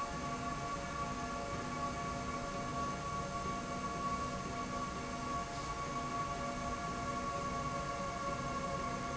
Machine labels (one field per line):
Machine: slide rail